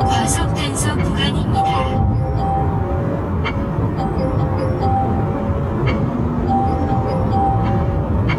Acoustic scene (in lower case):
car